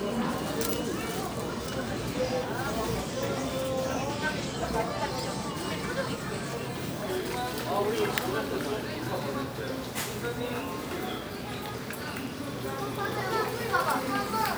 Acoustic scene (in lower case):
crowded indoor space